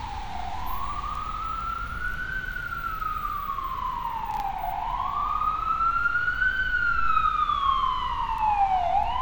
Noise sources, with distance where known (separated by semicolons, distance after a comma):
siren, near